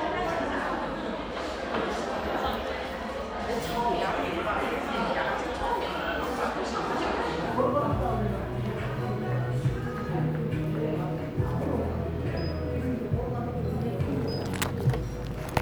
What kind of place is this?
crowded indoor space